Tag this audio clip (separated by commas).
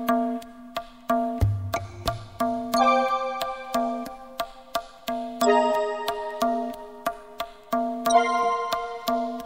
Music